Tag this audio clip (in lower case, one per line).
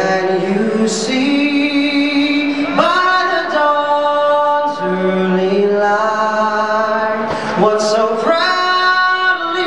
male singing